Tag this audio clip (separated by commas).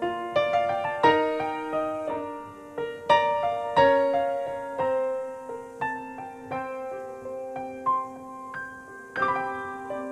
Electric piano, Music